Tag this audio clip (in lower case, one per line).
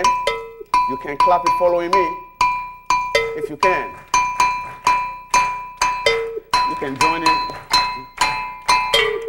music
percussion
musical instrument
speech